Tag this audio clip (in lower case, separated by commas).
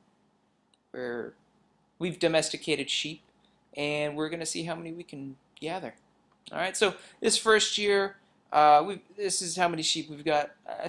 speech